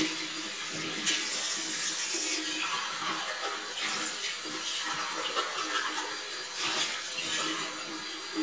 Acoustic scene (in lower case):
restroom